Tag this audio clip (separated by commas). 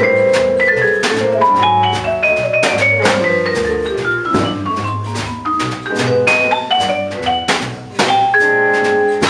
Music, Musical instrument, Drum, Percussion